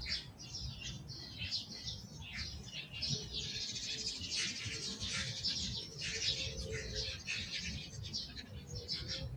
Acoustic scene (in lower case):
park